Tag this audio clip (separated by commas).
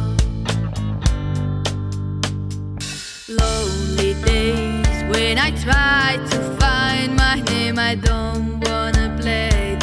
Music